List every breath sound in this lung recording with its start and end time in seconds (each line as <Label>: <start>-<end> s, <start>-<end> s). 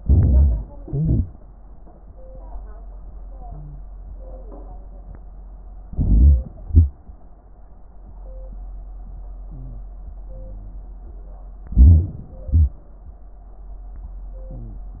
Inhalation: 0.00-0.83 s, 5.90-6.57 s, 11.66-12.55 s
Exhalation: 0.87-1.45 s, 3.37-3.95 s, 9.48-10.76 s, 12.55-12.83 s, 14.40-15.00 s
Wheeze: 3.37-3.95 s, 9.48-10.76 s, 14.40-15.00 s
Crackles: 0.00-0.81 s, 0.86-1.50 s, 11.68-12.48 s, 12.55-12.83 s